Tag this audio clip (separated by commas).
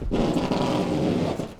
Domestic sounds, Packing tape